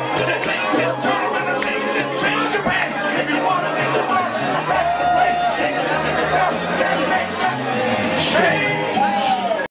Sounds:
male singing
music

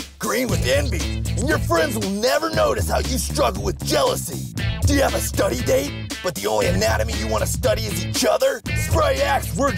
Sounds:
speech
music

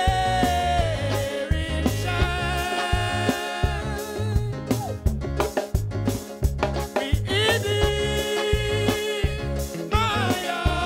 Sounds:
music

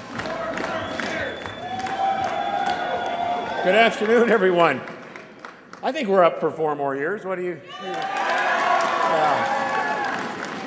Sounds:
man speaking
speech

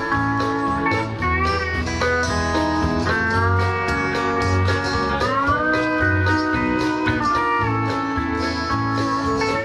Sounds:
playing steel guitar

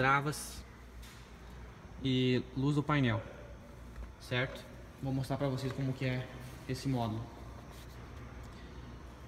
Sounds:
running electric fan

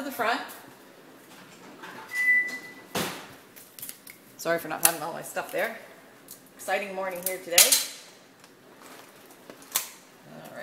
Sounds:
speech
inside a small room

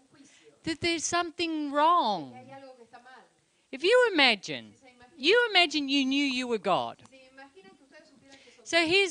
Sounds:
speech

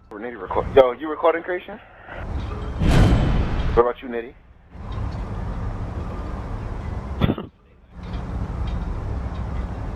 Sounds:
speech

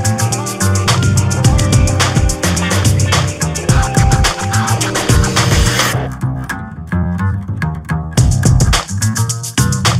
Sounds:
music

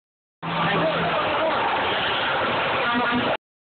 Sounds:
speech
vehicle

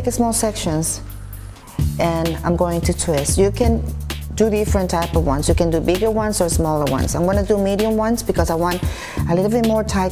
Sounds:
woman speaking
music
speech

